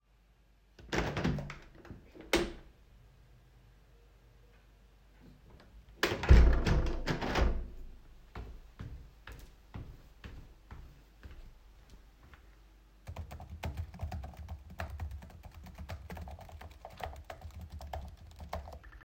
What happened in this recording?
I opened the window, then closed it. Then I went to the desk and started typing text on laptop